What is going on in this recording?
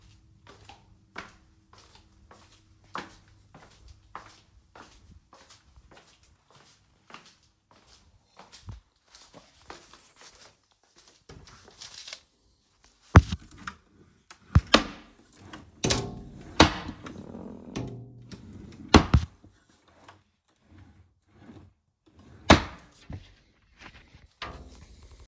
I walked on the stairs,I opened diffrent wardrobe drawers and closed them simultaneously.